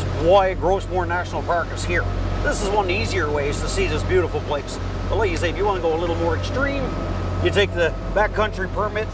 A man is talking as a motorboat travels with low music playing